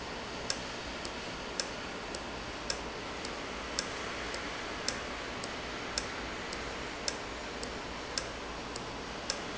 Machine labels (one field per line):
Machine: valve